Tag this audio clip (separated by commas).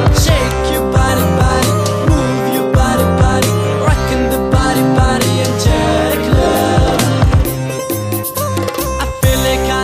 Music, Rhythm and blues